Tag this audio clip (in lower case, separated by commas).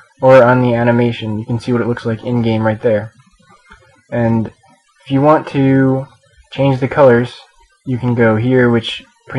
speech